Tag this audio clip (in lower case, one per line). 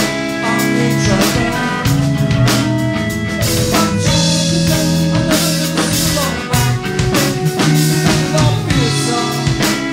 music